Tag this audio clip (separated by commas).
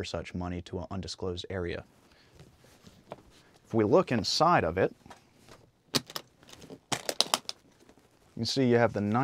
Speech